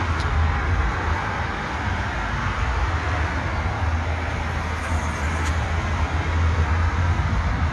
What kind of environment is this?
park